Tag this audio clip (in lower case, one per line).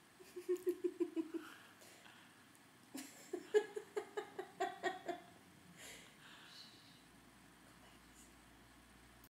speech